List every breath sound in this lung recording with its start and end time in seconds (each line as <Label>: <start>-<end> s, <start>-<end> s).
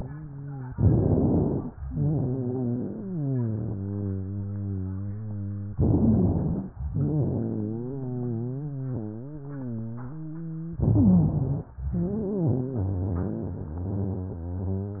Inhalation: 0.74-1.73 s, 5.74-6.73 s, 10.76-11.75 s
Exhalation: 1.84-5.68 s, 6.88-10.72 s, 11.92-15.00 s
Wheeze: 1.84-5.68 s, 6.88-10.72 s, 10.76-11.75 s, 11.92-15.00 s